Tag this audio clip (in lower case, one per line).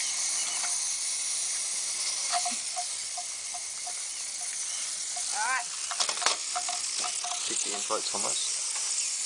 speech